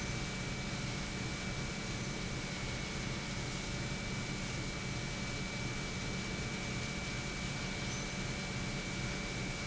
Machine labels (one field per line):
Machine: pump